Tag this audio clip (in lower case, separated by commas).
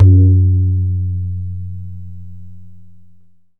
tabla, music, musical instrument, drum, percussion